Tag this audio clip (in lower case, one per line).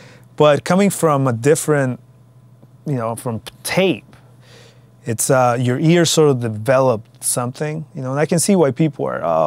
speech